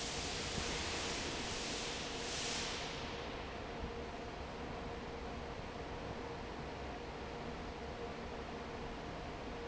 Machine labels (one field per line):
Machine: fan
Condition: normal